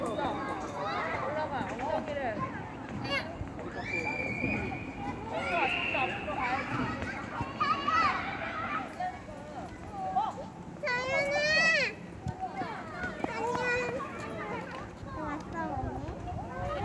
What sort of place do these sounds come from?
residential area